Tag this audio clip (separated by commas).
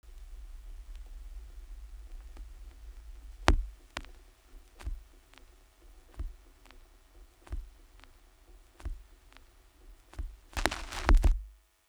Crackle